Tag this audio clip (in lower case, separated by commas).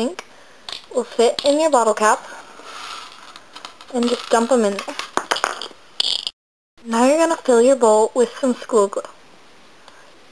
speech